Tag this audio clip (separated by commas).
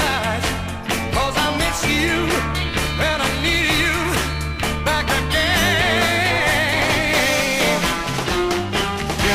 Music